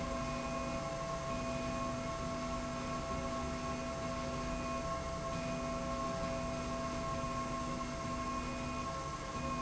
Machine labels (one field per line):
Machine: slide rail